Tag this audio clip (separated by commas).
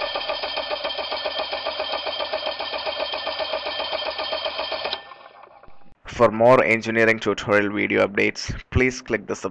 car engine starting